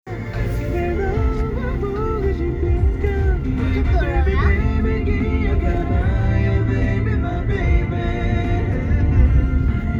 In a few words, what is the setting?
car